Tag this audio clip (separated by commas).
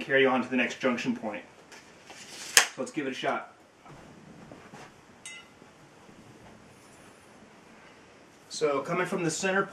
Speech